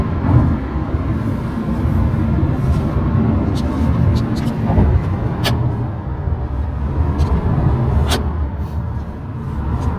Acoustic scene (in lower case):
car